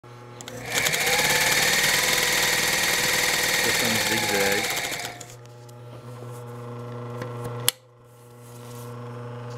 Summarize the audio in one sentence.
Sewing machine whirring at high speed, man faintly speaking in background